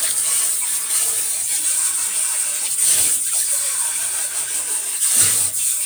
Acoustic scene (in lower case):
kitchen